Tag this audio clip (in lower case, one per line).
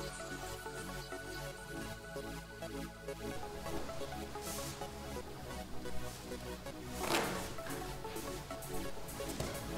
music